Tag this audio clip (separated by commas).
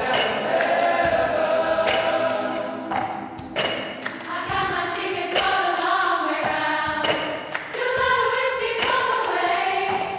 singing choir